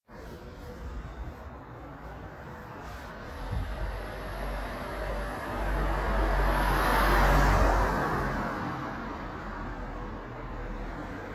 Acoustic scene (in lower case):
residential area